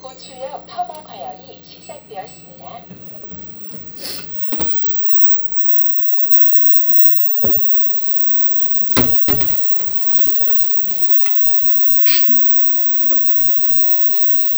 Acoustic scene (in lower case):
kitchen